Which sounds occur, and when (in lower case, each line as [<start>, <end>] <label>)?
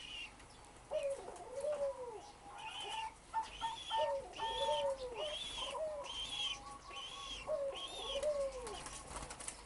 [0.00, 0.33] dove
[0.00, 9.65] mechanisms
[0.33, 0.46] generic impact sounds
[0.48, 0.58] bird song
[0.74, 1.19] surface contact
[0.92, 2.24] coo
[0.93, 1.11] dove
[1.24, 1.85] generic impact sounds
[2.21, 2.35] bird song
[2.56, 3.08] dove
[2.78, 2.90] generic impact sounds
[3.31, 5.37] coo
[3.45, 4.05] dove
[4.35, 4.86] dove
[4.93, 5.09] bird song
[5.13, 5.76] dove
[5.59, 6.07] coo
[6.01, 8.21] dove
[6.54, 6.95] bird song
[7.48, 8.77] coo
[8.19, 8.34] generic impact sounds
[8.66, 8.97] flapping wings
[9.16, 9.65] flapping wings
[9.48, 9.65] bird song